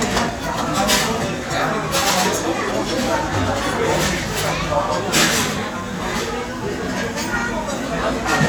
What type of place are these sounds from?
restaurant